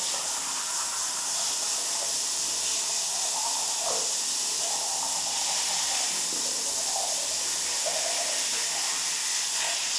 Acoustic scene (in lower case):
restroom